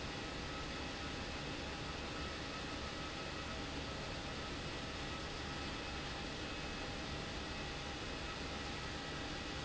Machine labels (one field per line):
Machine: pump